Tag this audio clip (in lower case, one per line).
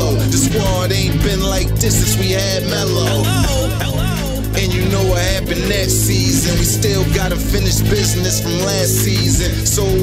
rapping
theme music
music